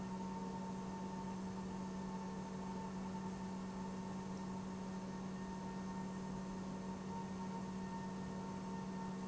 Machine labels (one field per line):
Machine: pump